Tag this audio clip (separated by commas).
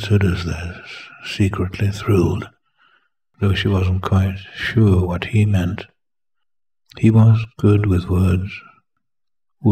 Speech